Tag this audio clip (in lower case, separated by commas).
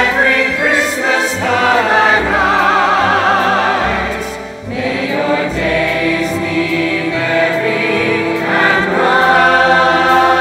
music, choir